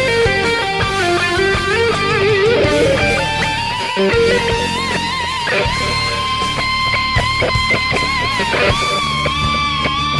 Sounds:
strum, music, musical instrument, guitar, plucked string instrument

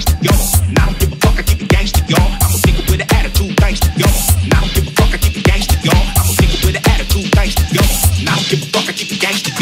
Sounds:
hip hop music, music

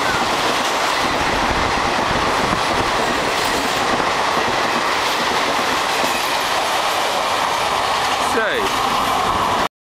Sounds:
inside a public space, vehicle, train, railroad car, speech

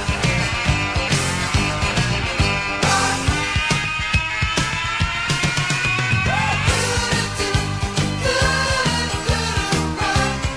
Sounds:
music

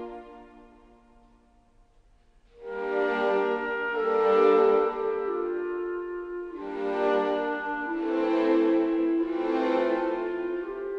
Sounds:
music

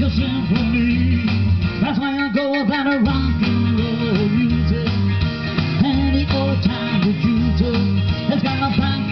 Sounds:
music, rock and roll

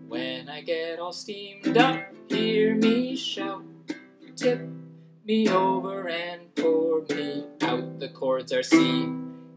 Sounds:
music, male singing

